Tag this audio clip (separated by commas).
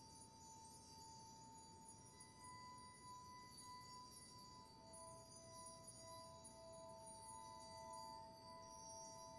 Vibraphone, Music